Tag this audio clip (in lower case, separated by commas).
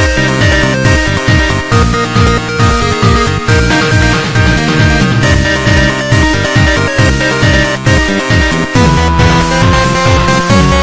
music